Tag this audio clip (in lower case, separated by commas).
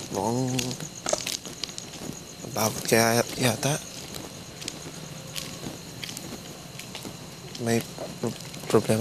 outside, rural or natural, speech